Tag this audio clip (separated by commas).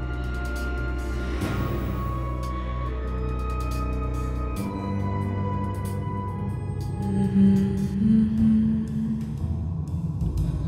Music